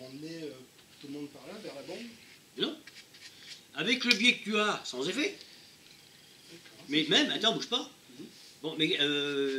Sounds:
speech

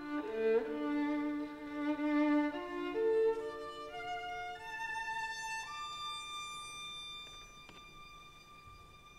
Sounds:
music, violin, musical instrument

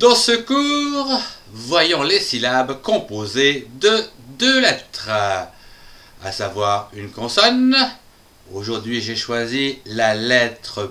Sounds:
speech

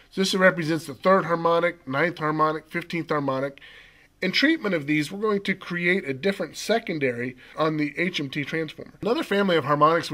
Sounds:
speech

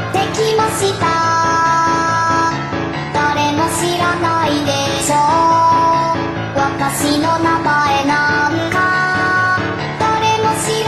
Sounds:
music, child singing

